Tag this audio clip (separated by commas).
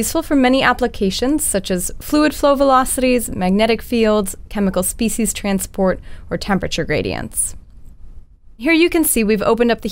Speech